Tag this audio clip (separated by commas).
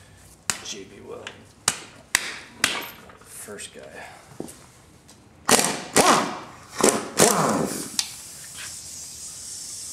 Whack